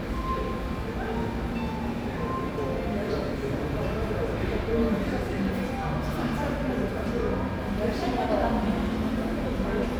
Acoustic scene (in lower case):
cafe